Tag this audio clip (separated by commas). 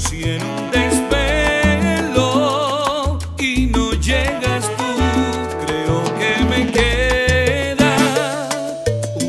Music, Music of Latin America, Salsa music